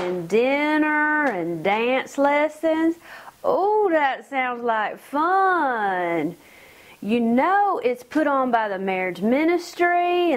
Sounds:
speech

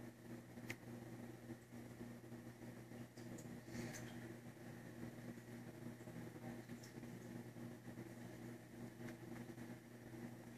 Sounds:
inside a small room

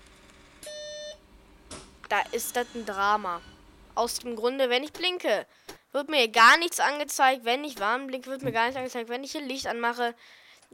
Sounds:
vehicle
speech
bus

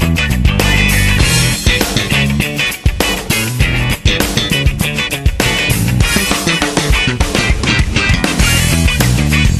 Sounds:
music

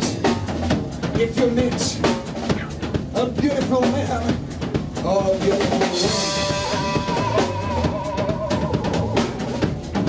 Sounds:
music
blues
speech

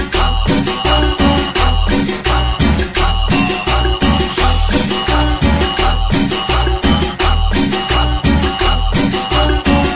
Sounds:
music

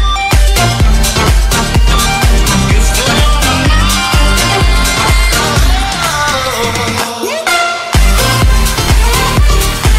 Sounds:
dance music

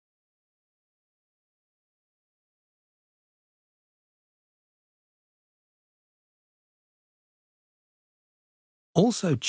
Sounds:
speech

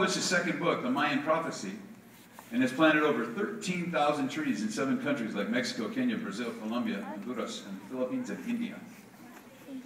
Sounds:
male speech
female speech
narration
speech

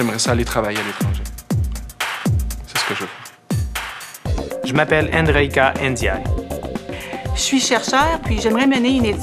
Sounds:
music
speech

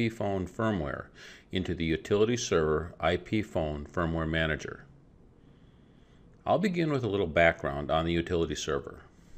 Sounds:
speech

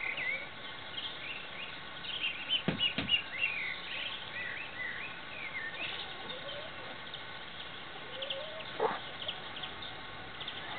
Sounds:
bird

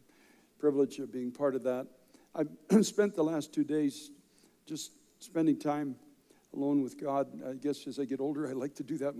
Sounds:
speech

